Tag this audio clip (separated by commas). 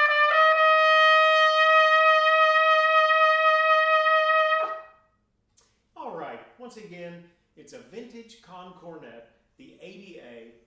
playing cornet